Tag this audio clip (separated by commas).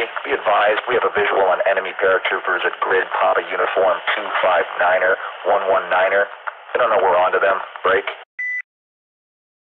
police radio chatter